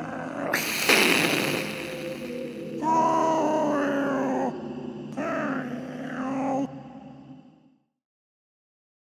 Cat hissing and meowing